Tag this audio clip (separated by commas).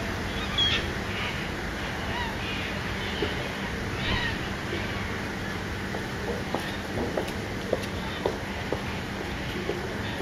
Animal